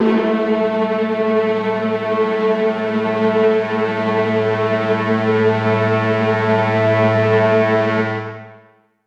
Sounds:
Musical instrument, Music

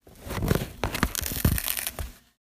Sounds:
Tearing

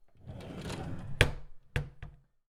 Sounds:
Drawer open or close, home sounds

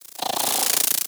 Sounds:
Animal, Insect, Wild animals

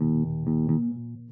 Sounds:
Bass guitar, Plucked string instrument, Musical instrument, Guitar, Music

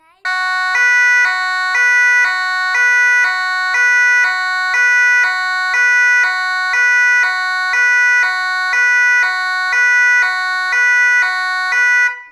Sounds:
Siren, Alarm

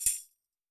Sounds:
Percussion, Musical instrument, Tambourine, Music

